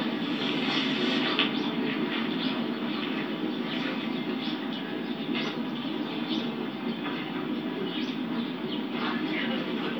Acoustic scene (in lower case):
park